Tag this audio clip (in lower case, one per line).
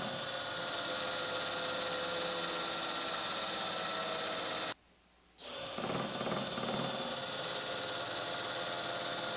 wood
tools